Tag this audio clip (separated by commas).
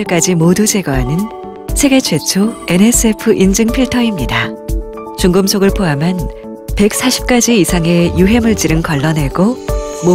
Speech, Music